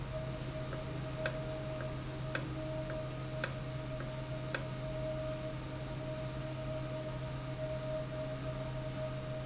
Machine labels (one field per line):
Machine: valve